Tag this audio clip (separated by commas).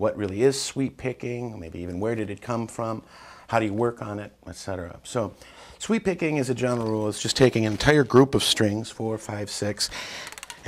Speech